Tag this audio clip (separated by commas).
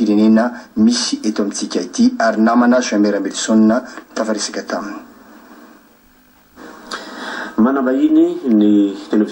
Speech